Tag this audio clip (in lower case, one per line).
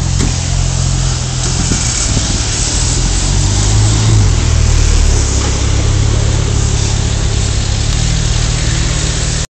mechanisms